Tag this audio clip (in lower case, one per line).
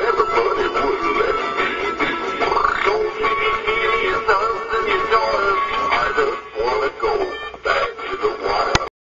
synthetic singing
music